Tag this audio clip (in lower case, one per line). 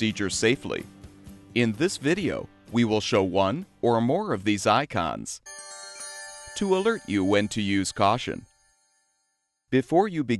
music
speech